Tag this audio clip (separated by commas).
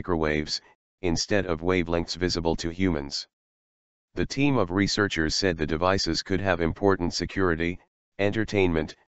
Speech